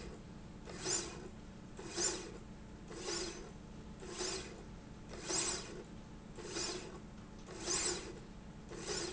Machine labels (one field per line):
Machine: slide rail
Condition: normal